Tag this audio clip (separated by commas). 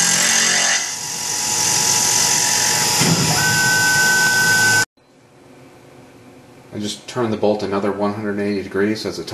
Tools, Speech